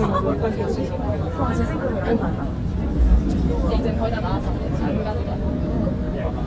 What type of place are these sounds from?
subway train